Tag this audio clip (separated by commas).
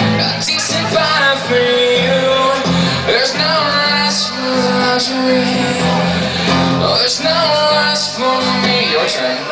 Music